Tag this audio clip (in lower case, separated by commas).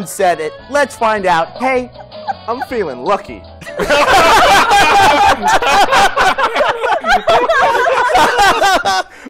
speech, music